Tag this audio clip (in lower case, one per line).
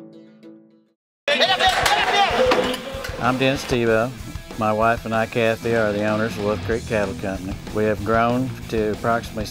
speech
music